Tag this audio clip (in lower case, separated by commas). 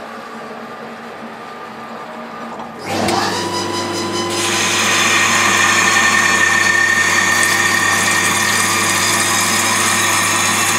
power tool, tools